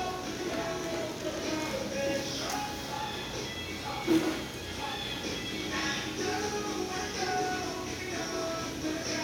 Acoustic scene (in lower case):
restaurant